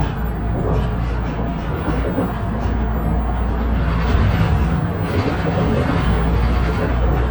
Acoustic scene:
bus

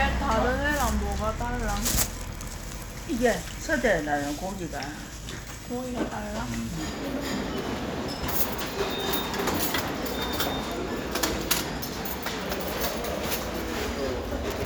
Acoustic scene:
restaurant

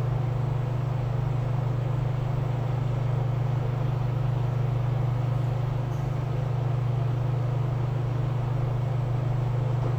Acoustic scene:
elevator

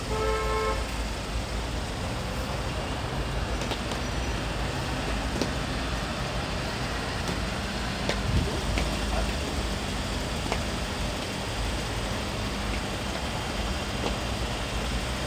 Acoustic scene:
street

